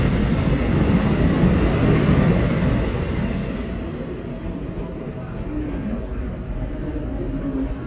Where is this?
in a subway station